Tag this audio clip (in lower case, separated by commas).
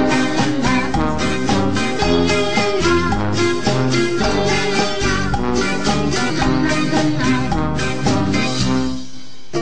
music